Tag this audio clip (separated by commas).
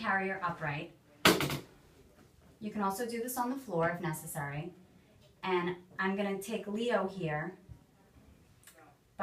Speech